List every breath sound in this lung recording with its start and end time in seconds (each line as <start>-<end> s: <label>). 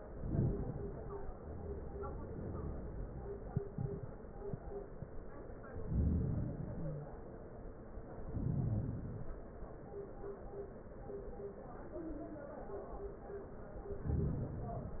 0.00-1.36 s: inhalation
1.37-3.78 s: exhalation
5.67-7.21 s: inhalation
6.69-7.14 s: wheeze
8.07-9.63 s: inhalation